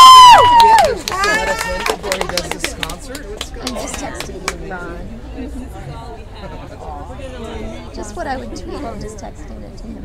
Audience applauding and yelling